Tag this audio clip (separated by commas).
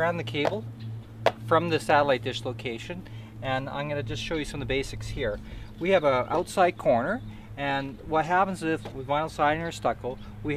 Speech